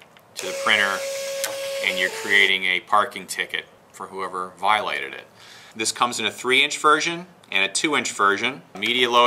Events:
[0.00, 9.25] background noise
[0.32, 2.48] printer
[0.33, 0.53] man speaking
[0.63, 0.96] man speaking
[1.35, 1.48] generic impact sounds
[1.78, 2.06] man speaking
[2.18, 2.78] man speaking
[2.88, 3.61] man speaking
[3.86, 4.46] man speaking
[4.56, 5.24] man speaking
[5.42, 5.72] breathing
[5.70, 7.25] man speaking
[7.46, 8.59] man speaking
[8.72, 9.25] man speaking
[8.72, 8.90] generic impact sounds

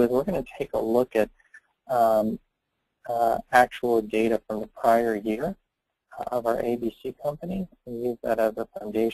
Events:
[0.01, 1.22] man speaking
[0.04, 9.13] background noise
[1.75, 2.42] man speaking
[3.02, 5.53] man speaking
[6.11, 9.13] man speaking

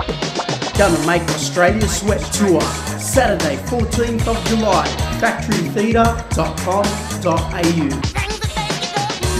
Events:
[0.00, 9.35] music
[0.72, 2.77] male speech
[3.00, 3.52] male speech
[3.69, 4.88] male speech
[5.20, 6.15] male speech
[6.33, 6.94] male speech
[7.17, 8.05] male speech
[8.12, 9.35] female singing

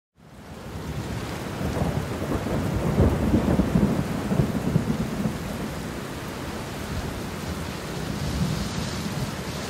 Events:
[0.06, 9.65] rain on surface
[0.35, 5.76] thunderstorm
[8.02, 9.57] thunderstorm

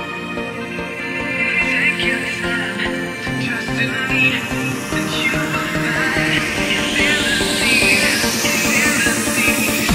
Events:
[0.00, 9.94] music
[1.01, 4.39] male singing
[4.88, 6.44] male singing
[6.93, 9.94] male singing

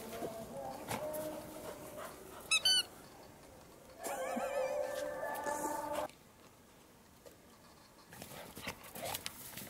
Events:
[0.00, 1.49] synthetic singing
[0.00, 2.04] music
[0.00, 9.65] background noise
[0.67, 1.02] dog
[1.27, 2.42] pant (dog)
[2.37, 2.85] squeak
[3.99, 5.06] laughter
[4.01, 6.03] music
[4.01, 6.05] synthetic singing
[6.37, 6.51] tick
[6.69, 6.84] tick
[7.22, 7.35] tick
[8.07, 9.16] dog
[8.07, 9.65] generic impact sounds
[9.08, 9.30] tick

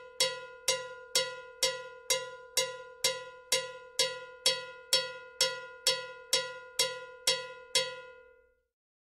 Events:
[0.00, 8.72] cowbell

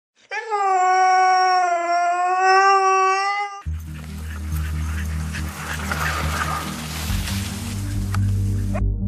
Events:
[0.13, 0.25] scrape
[0.24, 3.59] dog
[3.58, 9.05] music
[3.59, 6.43] pant (dog)
[3.59, 8.79] scrape
[7.85, 8.60] pant (dog)
[8.10, 8.16] clicking
[8.70, 8.78] dog

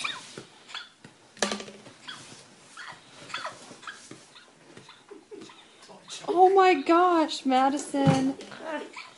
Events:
[0.00, 0.19] hiccup
[0.00, 9.15] background noise
[0.31, 0.45] tap
[0.67, 0.92] hiccup
[0.97, 1.10] tap
[1.36, 1.89] generic impact sounds
[2.02, 2.21] hiccup
[2.02, 2.43] surface contact
[2.73, 3.00] hiccup
[3.16, 3.77] generic impact sounds
[3.29, 3.54] hiccup
[3.77, 3.99] hiccup
[4.06, 4.19] tap
[4.29, 4.42] hiccup
[4.70, 4.87] tap
[4.78, 5.01] hiccup
[5.06, 5.55] chortle
[5.45, 5.75] hiccup
[5.85, 6.24] male speech
[6.01, 6.27] hiccup
[6.24, 8.38] female speech
[8.02, 8.32] hiccup
[8.03, 8.23] tap
[8.34, 8.45] tick
[8.58, 8.94] human voice
[8.90, 9.15] hiccup

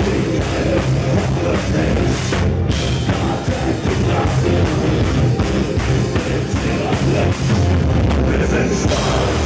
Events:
[0.01, 9.45] music
[0.24, 2.42] male singing
[3.01, 7.72] male singing
[8.20, 9.45] male singing

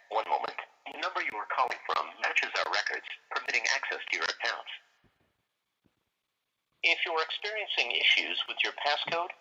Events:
[0.00, 9.40] background noise
[0.04, 0.63] male speech
[0.42, 0.47] generic impact sounds
[0.55, 0.60] generic impact sounds
[0.83, 3.14] male speech
[1.25, 1.29] generic impact sounds
[3.27, 4.76] male speech
[6.79, 9.30] male speech
[9.01, 9.10] generic impact sounds

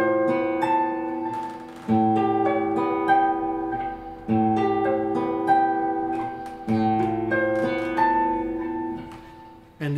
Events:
[0.00, 9.95] music
[8.92, 9.23] crack
[9.74, 9.95] male speech

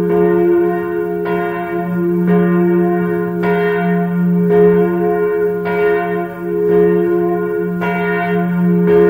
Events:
[0.00, 9.05] church bell

